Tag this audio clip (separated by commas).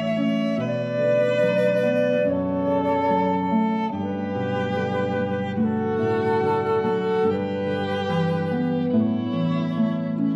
Musical instrument, Music, fiddle, Flute